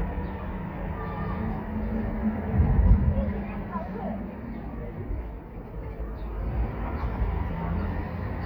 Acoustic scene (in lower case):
residential area